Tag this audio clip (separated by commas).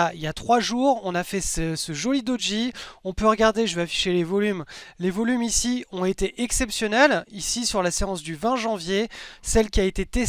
Speech